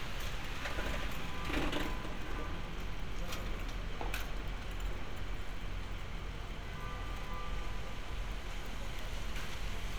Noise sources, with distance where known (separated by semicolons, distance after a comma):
car horn, far